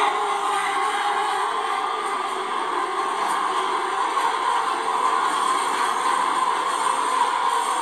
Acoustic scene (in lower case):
subway train